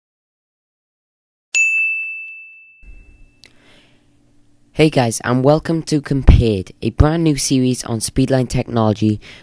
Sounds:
ding

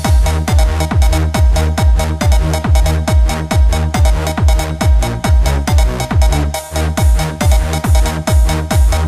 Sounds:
music, musical instrument

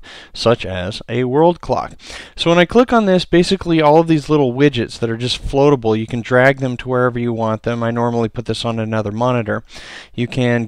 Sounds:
speech

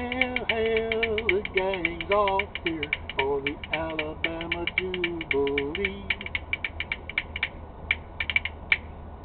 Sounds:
rattle

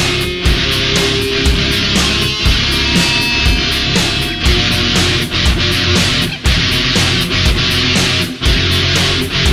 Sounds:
rhythm and blues, music

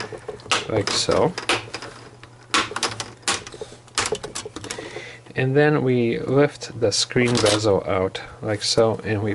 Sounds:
inside a small room, speech

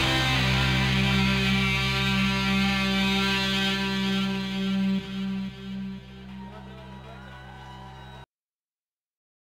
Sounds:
music, musical instrument, heavy metal, speech

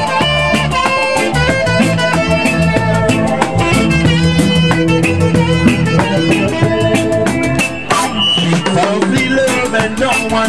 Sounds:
music, male singing

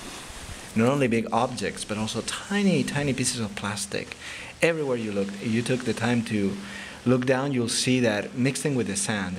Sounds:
speech

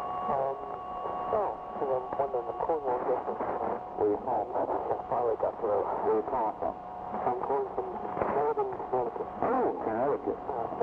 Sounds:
speech, radio

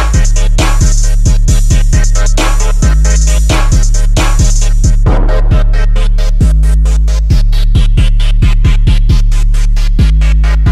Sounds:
music, hip hop music

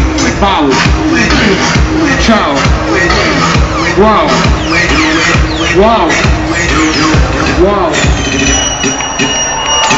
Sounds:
music, electronic music, techno, speech

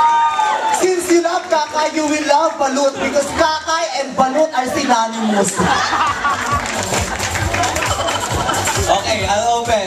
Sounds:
inside a large room or hall, speech, music

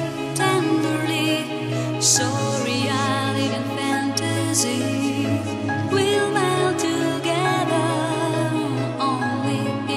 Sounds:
trance music, music

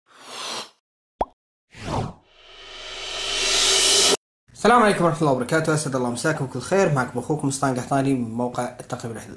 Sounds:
speech, plop

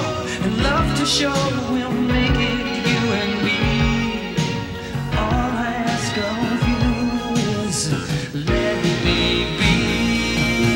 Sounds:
independent music

